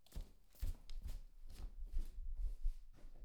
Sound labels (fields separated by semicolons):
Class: footsteps; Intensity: medium